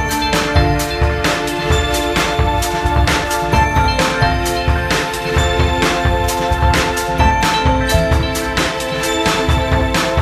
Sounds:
Music

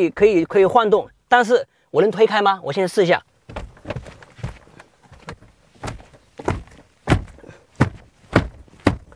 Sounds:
opening or closing car doors

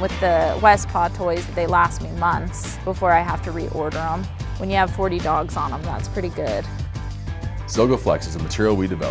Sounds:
Music, Speech

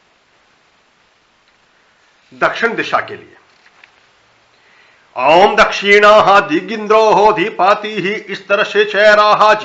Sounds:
Mantra, Speech

